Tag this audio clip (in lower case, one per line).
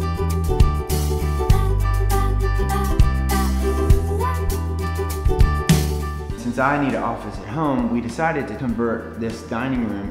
speech
music